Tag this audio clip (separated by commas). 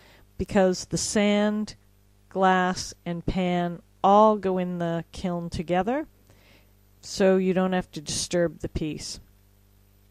Speech